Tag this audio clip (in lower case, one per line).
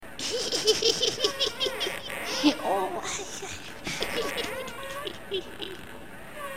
human voice
laughter